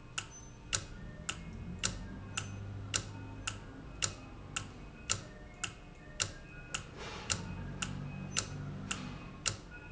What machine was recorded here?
valve